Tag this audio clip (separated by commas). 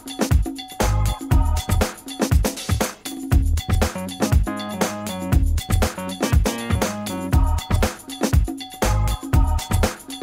Music